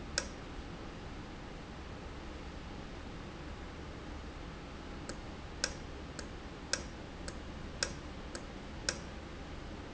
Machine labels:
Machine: valve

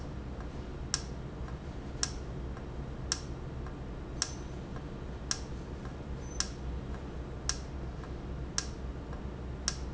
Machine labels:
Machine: valve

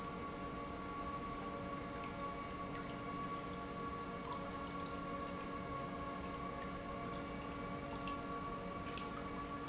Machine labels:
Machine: pump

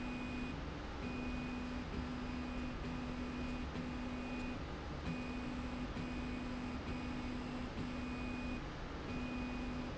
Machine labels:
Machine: slide rail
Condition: normal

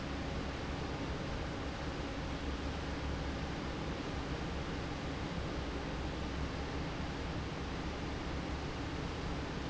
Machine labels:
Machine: fan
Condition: normal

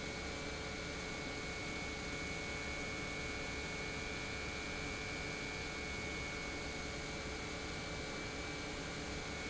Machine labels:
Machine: pump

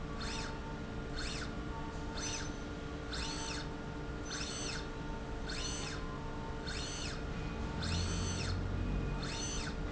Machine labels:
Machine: slide rail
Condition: normal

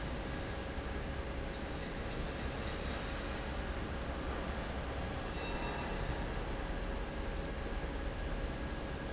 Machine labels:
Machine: fan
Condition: normal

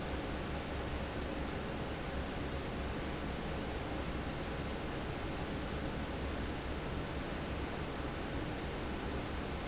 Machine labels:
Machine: fan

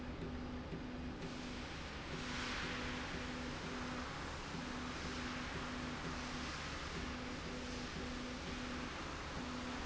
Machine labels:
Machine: slide rail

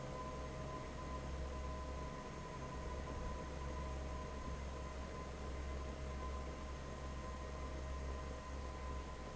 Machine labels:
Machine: fan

